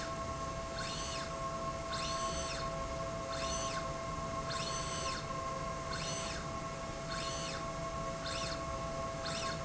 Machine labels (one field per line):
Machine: slide rail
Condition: normal